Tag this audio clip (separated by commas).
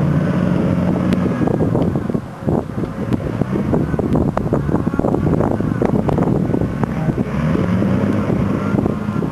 Vehicle